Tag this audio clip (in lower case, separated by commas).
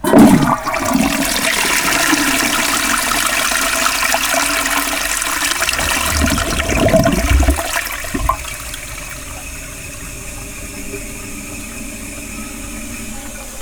toilet flush, home sounds